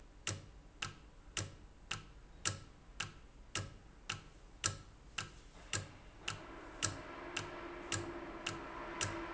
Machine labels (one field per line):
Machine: valve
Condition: normal